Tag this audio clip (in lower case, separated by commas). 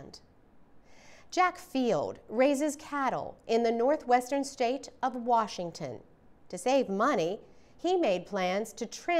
speech